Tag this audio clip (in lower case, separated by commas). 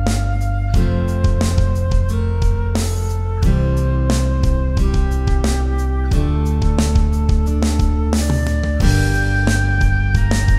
music